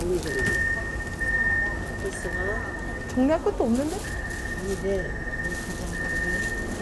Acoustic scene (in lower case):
subway train